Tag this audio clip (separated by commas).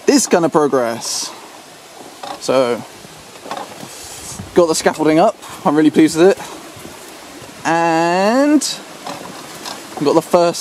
Speech